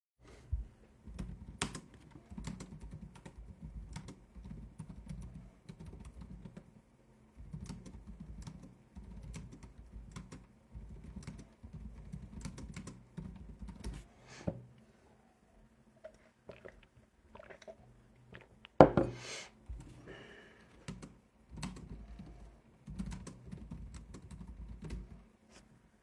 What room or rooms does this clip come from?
office